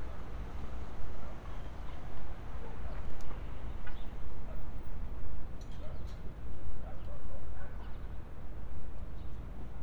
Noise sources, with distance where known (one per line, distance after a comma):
dog barking or whining, far